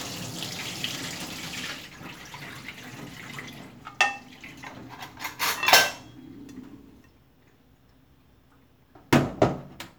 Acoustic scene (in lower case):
kitchen